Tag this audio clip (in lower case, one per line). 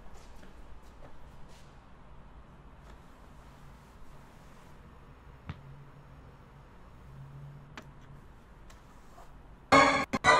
music